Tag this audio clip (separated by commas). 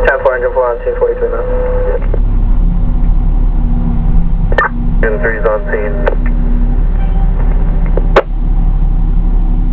Vehicle, Engine, Radio, outside, urban or man-made, Speech